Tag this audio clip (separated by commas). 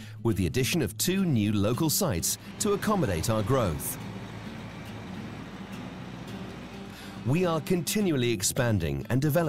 Music, Speech